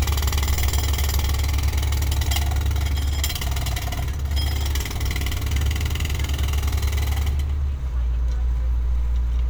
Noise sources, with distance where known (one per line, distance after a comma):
jackhammer, near
person or small group talking